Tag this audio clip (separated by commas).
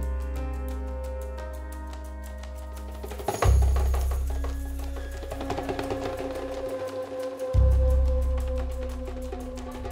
Percussion, Music